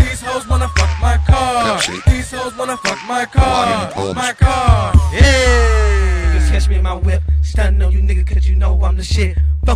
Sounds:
Music, Speech

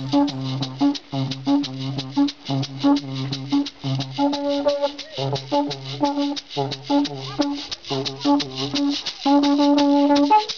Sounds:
Speech, Music

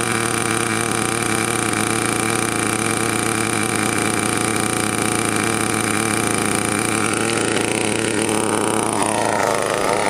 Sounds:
Medium engine (mid frequency), Engine, Vehicle

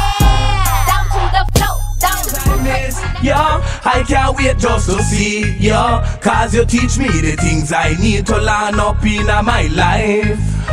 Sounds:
Rapping, Music, Hip hop music, Reggae

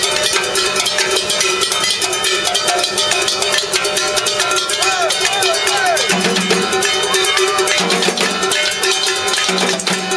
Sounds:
Music, Percussion, Speech

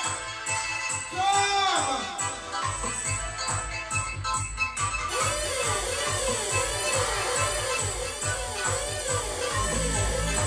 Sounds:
Music

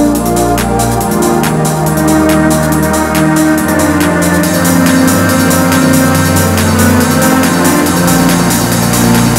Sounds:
Electronic music, Music

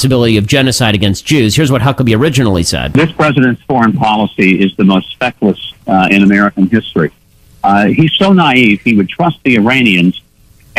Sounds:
Speech

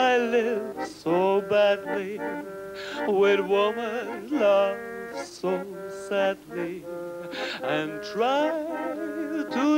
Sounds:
Music

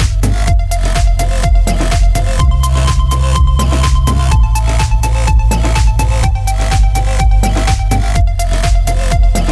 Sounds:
Sound effect, Music

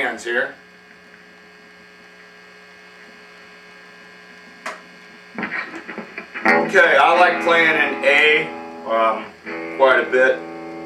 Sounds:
Plucked string instrument, Musical instrument, Guitar, Electric guitar, Speech, Music

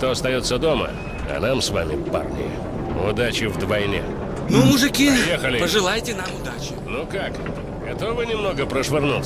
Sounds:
Speech, Railroad car

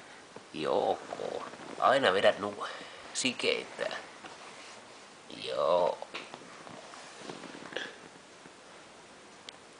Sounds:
Speech

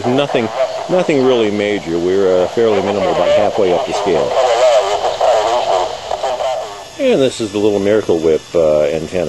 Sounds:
Radio, Speech

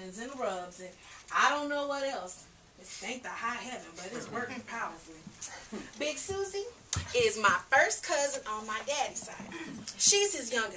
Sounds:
Speech

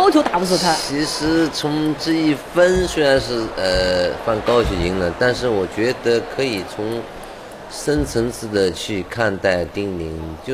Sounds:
Speech

